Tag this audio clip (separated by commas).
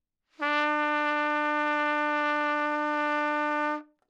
Music, Brass instrument, Musical instrument, Trumpet